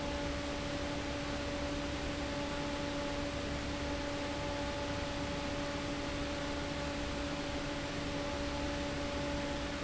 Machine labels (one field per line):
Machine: fan